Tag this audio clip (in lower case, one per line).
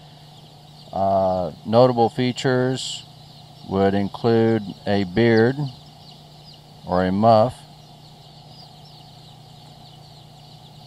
speech